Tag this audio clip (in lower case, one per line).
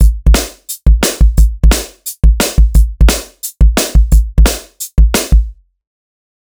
snare drum
percussion
drum
music
musical instrument